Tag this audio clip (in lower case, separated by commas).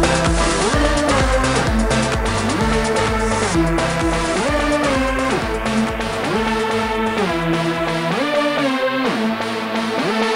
music, house music, trance music